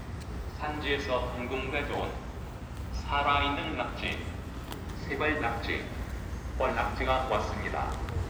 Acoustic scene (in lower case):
residential area